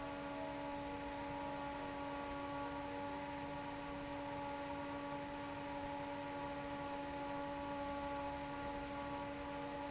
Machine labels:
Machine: fan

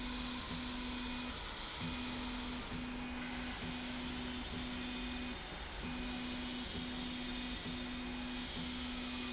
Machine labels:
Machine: slide rail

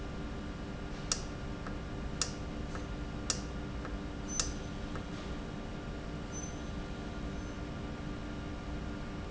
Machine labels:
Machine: valve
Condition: normal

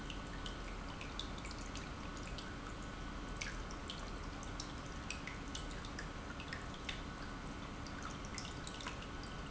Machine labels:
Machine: pump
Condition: normal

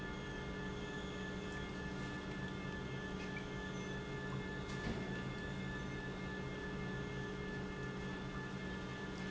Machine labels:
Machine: pump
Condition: normal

